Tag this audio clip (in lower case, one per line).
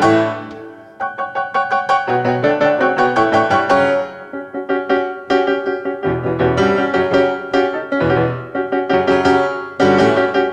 keyboard (musical)
music
electric piano